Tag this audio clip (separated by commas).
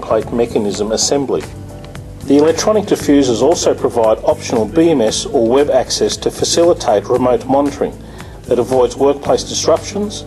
Speech